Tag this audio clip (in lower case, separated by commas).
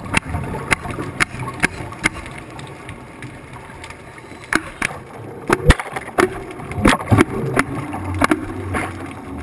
underwater bubbling